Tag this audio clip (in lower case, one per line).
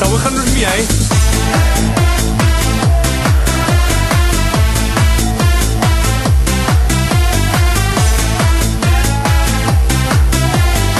music
techno